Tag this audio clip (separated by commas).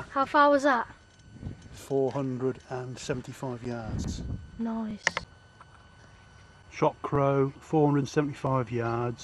Speech